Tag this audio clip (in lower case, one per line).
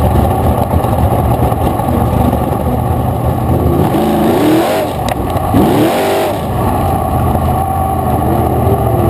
motor vehicle (road)
vehicle
car